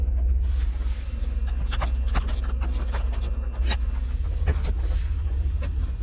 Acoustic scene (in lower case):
car